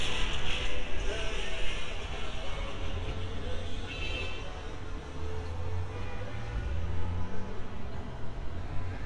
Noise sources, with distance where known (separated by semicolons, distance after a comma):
car horn, far; music from an unclear source